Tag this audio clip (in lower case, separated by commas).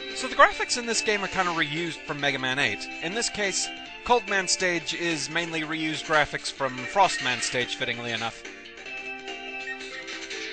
music, speech